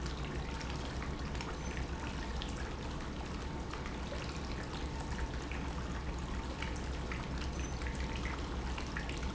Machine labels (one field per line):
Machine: pump